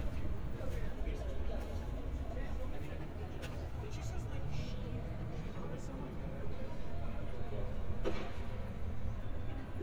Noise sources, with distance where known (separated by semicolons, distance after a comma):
person or small group talking, near